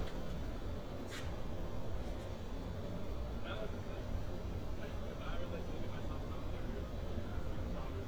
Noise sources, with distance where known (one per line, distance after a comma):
person or small group talking, near